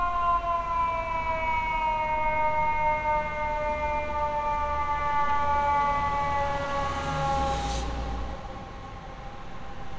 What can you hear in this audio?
siren